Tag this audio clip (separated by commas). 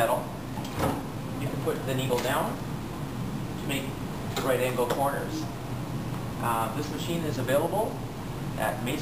Speech